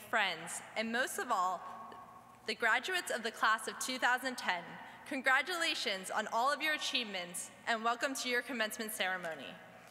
She is giving a speech